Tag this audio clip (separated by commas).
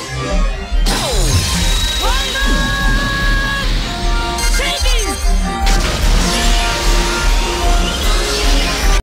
Music, Sound effect